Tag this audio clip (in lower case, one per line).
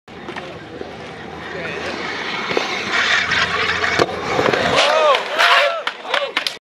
speech